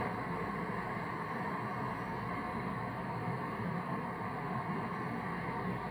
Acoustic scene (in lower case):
street